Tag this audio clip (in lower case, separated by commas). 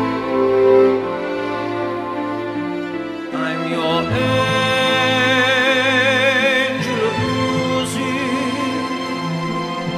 music, opera